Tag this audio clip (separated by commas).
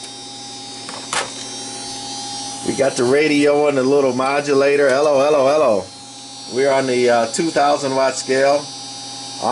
Speech